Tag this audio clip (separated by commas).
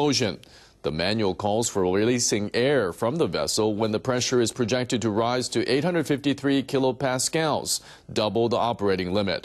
Speech